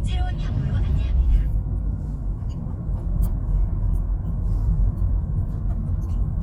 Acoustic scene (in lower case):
car